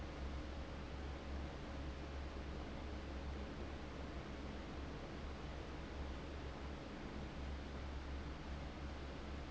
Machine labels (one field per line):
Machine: fan